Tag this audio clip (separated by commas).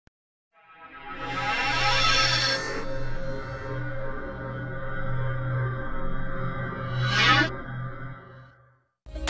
Sonar, Music